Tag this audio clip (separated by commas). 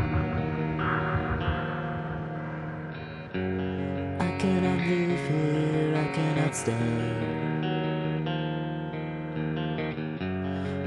Music